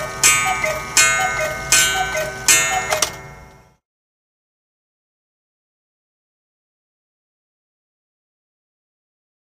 Ticking and ringing of a coo clock